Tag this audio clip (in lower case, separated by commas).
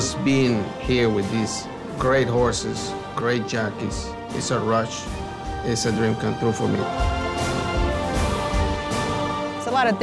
speech, music